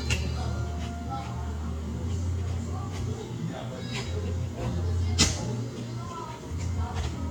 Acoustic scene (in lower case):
cafe